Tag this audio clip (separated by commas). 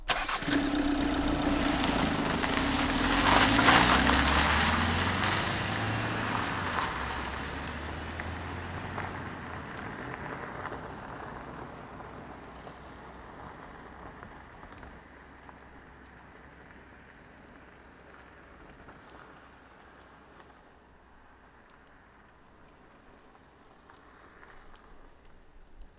Engine, Engine starting